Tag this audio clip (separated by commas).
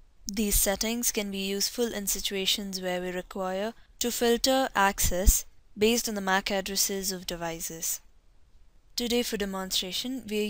Speech